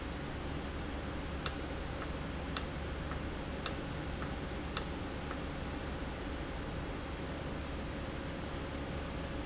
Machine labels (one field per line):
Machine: valve